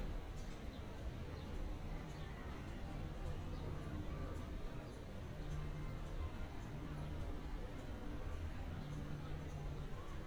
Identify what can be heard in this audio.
unidentified human voice